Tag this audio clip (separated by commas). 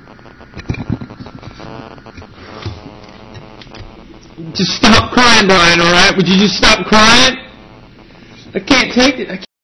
Speech